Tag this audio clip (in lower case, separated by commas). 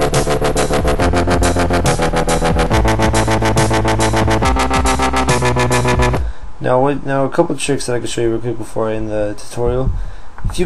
dubstep, electronic music, music, speech